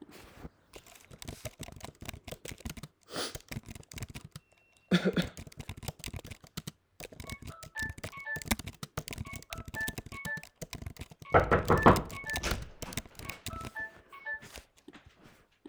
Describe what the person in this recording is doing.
I was typing on my laptop when my phone's alarm went off. I sniffled and coughed in between. I continued typing for a few seconds when my flatmate knocked on the door and opened it. Then I stopped typing.